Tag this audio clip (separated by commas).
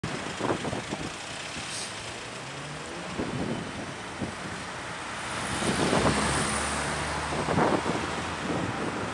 Car, Vehicle